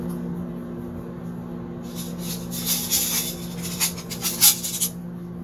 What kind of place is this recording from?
kitchen